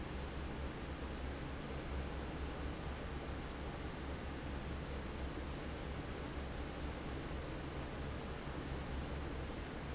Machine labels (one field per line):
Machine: fan